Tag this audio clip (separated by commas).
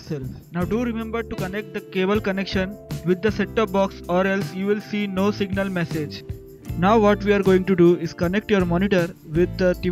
Speech, Music